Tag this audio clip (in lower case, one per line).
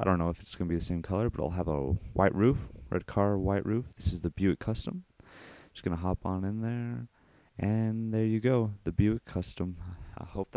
speech